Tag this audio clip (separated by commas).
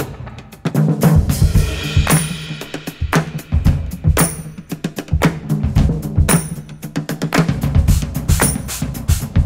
Percussion, Drum, Drum kit, Rimshot, Snare drum, Bass drum